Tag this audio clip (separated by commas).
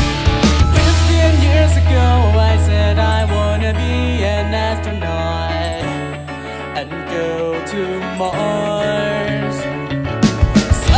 Music, Happy music